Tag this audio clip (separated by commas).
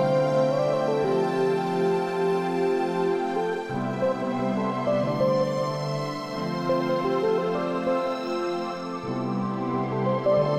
Music, New-age music